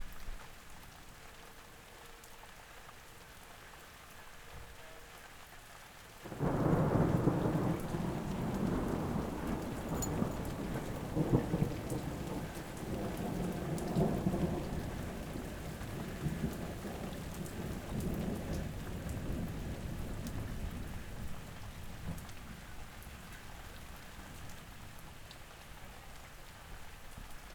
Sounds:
Thunderstorm, Thunder, Rain, Water

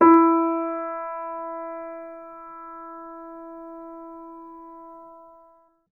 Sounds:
Keyboard (musical), Music, Musical instrument, Piano

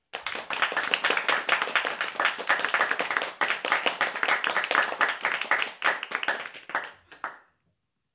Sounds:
Applause, Crowd, Human group actions

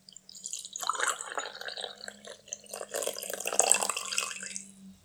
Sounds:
Fill (with liquid), Liquid, Pour, Engine, dribble

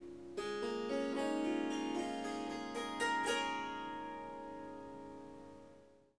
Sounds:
Music, Musical instrument, Harp

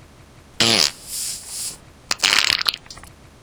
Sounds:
Fart

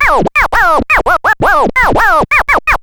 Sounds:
Musical instrument, Scratching (performance technique), Music

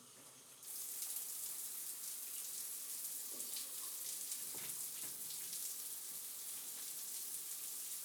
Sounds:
home sounds, Bathtub (filling or washing)

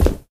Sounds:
Walk

